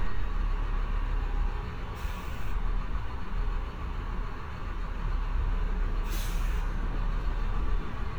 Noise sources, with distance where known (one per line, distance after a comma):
engine of unclear size